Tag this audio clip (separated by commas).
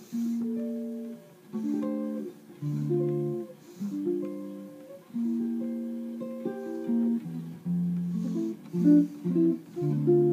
Acoustic guitar, Plucked string instrument, Guitar, Musical instrument, Music, Strum